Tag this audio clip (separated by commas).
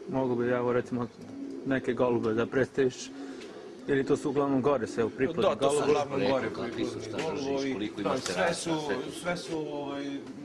outside, urban or man-made, Bird, Speech